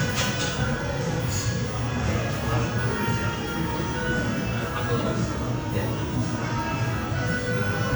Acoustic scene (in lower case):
cafe